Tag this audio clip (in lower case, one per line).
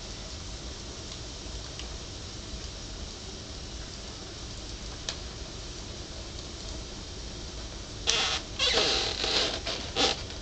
fire